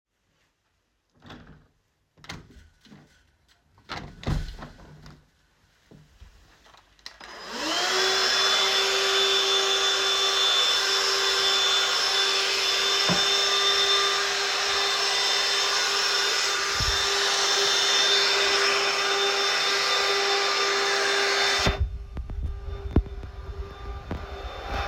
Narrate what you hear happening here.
I held the phone while operating a handheld vacuum cleaner. While the vacuum was running, I reached over to open and then close the living room window.